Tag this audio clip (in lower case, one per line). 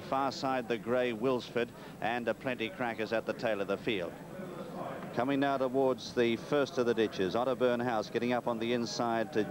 speech